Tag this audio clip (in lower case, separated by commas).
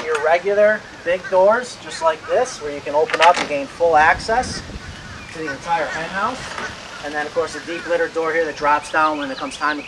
speech